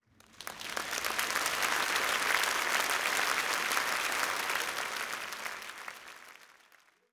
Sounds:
human group actions, applause

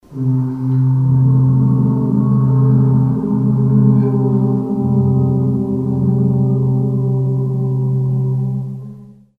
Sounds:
human voice, singing

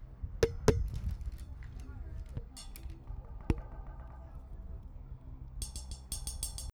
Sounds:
tap

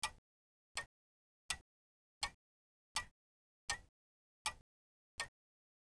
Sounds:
mechanisms, clock

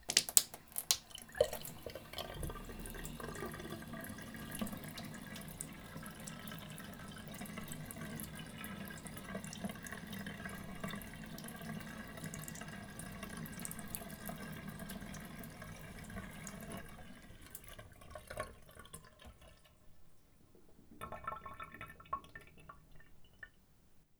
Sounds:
liquid, domestic sounds, dribble, sink (filling or washing), water tap, water, pour, gurgling, drip

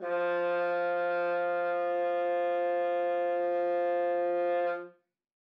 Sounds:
musical instrument, music, brass instrument

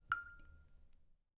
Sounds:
rain, drip, water, raindrop, liquid

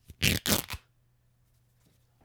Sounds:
tearing

